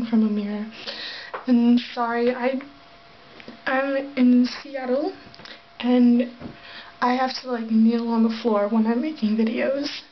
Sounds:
Speech

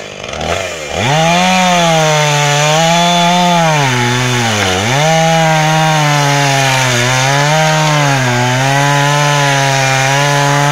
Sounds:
chainsawing trees

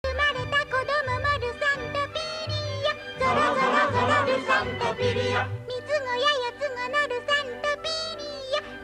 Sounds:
Child singing, Music, Female singing

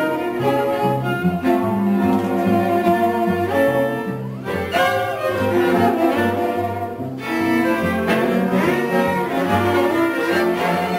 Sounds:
Cello, Bowed string instrument

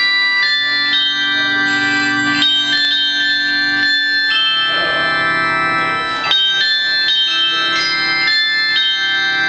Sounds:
Music

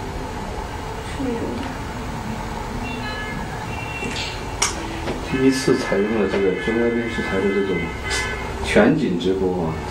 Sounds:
Speech

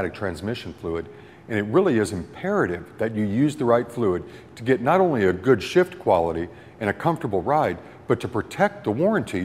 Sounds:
Speech

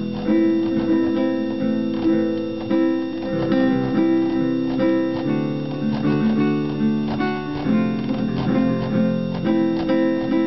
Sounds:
Guitar, Music

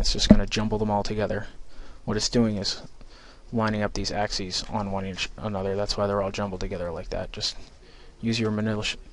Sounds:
Speech

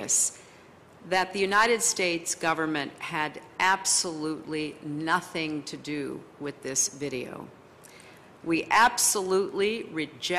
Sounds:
woman speaking, Narration, Speech

